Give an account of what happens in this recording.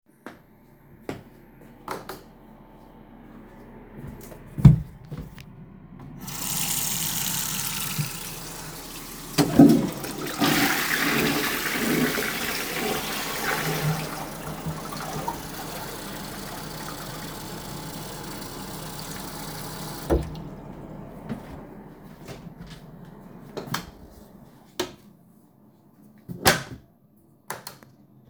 I walked into the bathroom and turned on the light. I turned on the water and while the water was running I flushed the toilet, so both sounds overlapped for a few seconds. After that I turned off the water, left the bathroom, and closed the door. Finally I turned off the light, while a ventilation fan was audible in the background